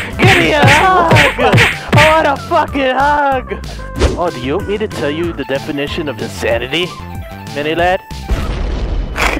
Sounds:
music
speech

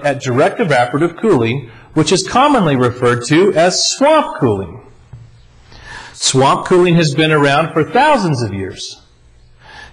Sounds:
speech

